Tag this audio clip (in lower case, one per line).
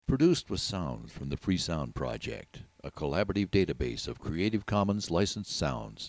human voice